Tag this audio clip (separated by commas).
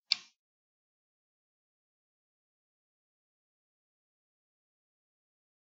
Tick, Mechanisms, Clock